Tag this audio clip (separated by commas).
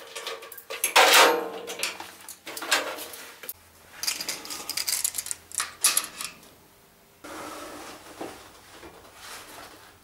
dishes, pots and pans